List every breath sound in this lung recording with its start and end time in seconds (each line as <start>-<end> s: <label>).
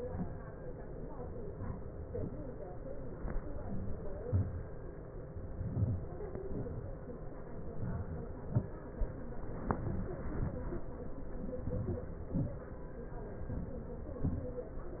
3.63-4.09 s: inhalation
4.25-4.64 s: exhalation
5.67-6.13 s: inhalation
6.47-6.88 s: exhalation
7.77-8.27 s: inhalation
8.46-8.98 s: exhalation
11.67-12.17 s: inhalation
12.36-12.75 s: exhalation
13.44-14.00 s: inhalation